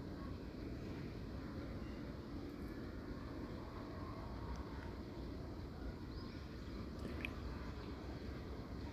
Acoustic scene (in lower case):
residential area